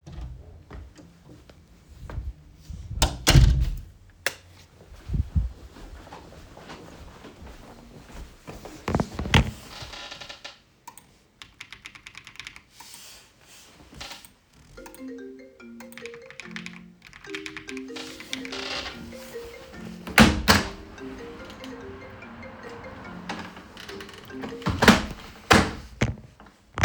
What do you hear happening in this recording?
I entered the room and closed the door behind me then turned on the lights and walked to the desk. I placed my phone on the table and sat down with the chair squeaking. I clicked the mouse a few times and the phone started ringing. While the phone was ringing I continued typing on the keyboard. I opened the window and closed it as the phone stopped ringing.